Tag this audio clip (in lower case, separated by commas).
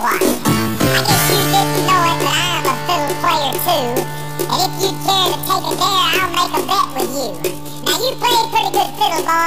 music